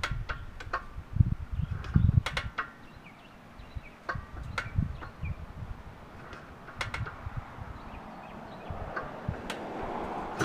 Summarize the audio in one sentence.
Metal is knocking, birds are chirping, and a motor vehicle passes by